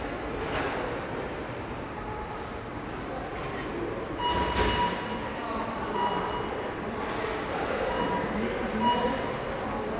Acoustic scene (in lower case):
subway station